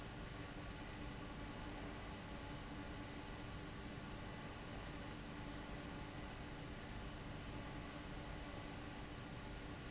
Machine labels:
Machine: fan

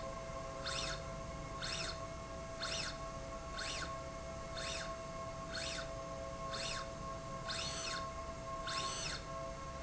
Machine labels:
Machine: slide rail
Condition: normal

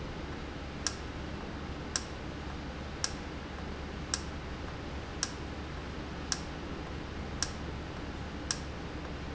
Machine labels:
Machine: valve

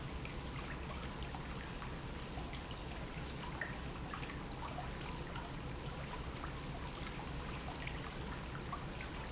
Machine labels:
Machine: pump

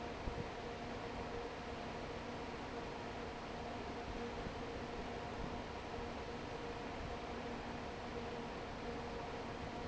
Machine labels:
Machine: fan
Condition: normal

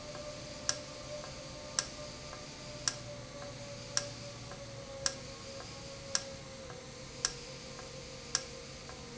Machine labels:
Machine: valve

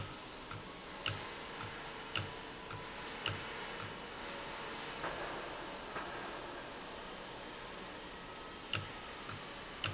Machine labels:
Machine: valve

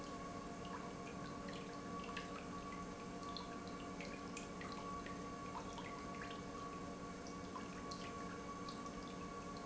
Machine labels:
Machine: pump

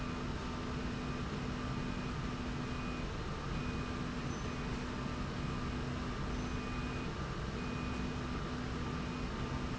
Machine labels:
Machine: slide rail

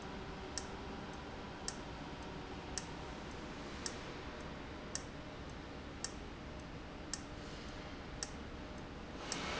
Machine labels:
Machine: valve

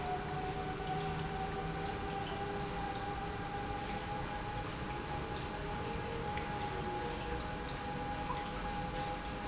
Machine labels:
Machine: pump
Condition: normal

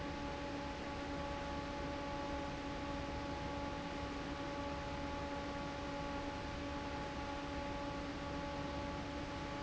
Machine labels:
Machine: fan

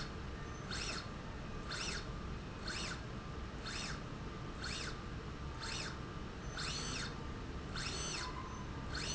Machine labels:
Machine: slide rail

